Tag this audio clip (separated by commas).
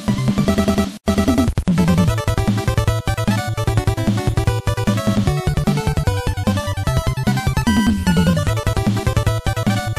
Rhythm and blues, Background music, Music